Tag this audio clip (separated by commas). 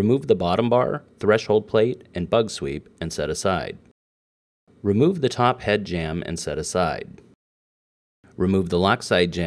Speech